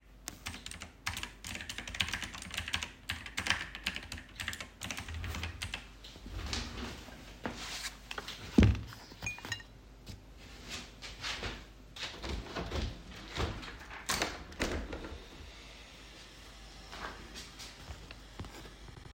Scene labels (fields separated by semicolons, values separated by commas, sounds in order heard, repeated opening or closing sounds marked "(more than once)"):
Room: office; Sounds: keyboard typing, cutlery and dishes, window